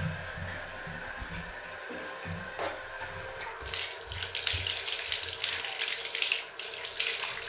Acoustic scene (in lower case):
restroom